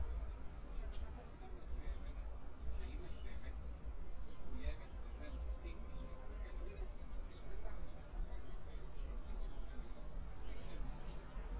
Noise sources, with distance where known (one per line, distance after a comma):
person or small group talking, far